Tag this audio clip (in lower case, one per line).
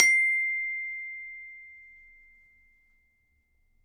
mallet percussion
musical instrument
music
glockenspiel
percussion